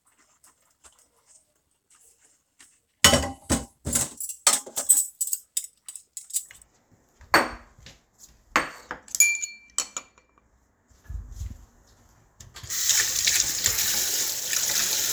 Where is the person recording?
in a kitchen